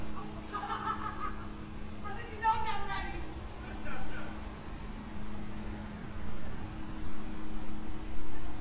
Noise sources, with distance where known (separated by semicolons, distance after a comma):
unidentified human voice, near